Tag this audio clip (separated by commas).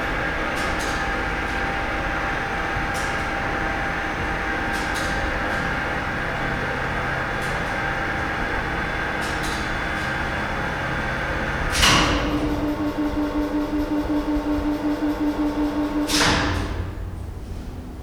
Mechanisms